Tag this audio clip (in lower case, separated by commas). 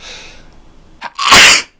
sneeze, respiratory sounds